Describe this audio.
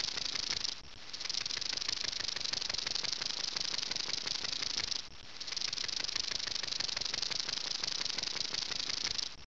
Rattling and hissing